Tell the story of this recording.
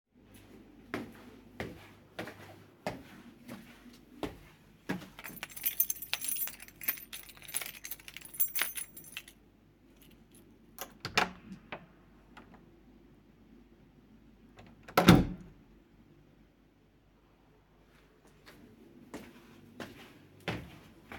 Walking then keys jingle and a door is opened and closed before walking a little again.